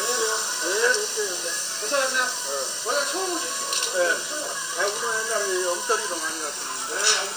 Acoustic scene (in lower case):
restaurant